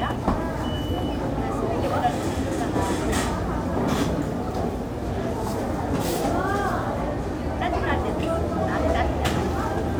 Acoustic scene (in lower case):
crowded indoor space